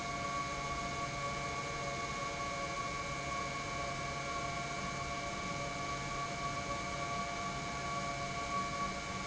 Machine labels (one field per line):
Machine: pump